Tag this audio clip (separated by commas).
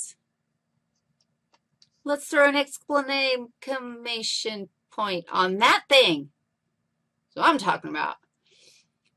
Speech